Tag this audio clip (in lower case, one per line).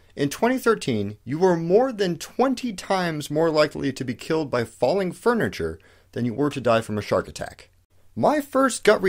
speech